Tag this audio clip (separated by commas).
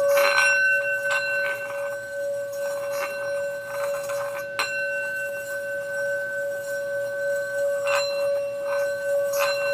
Music, Singing bowl